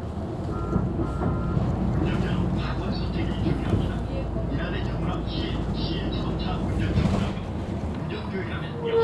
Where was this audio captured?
on a bus